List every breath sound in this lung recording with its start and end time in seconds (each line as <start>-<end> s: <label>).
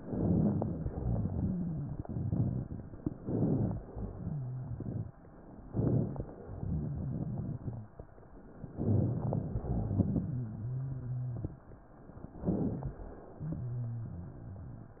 0.00-0.77 s: rhonchi
0.00-0.78 s: inhalation
0.89-1.96 s: exhalation
0.89-1.96 s: rhonchi
3.21-3.83 s: inhalation
4.04-5.11 s: exhalation
4.04-5.11 s: rhonchi
5.65-6.34 s: inhalation
6.58-7.84 s: exhalation
6.58-7.84 s: rhonchi
8.71-9.53 s: inhalation
9.56-10.40 s: exhalation
9.56-11.63 s: rhonchi
12.31-13.04 s: inhalation
13.39-15.00 s: exhalation
13.39-15.00 s: rhonchi